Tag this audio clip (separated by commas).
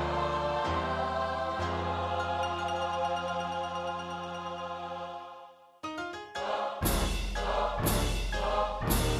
Music, Keyboard (musical), Musical instrument, Piano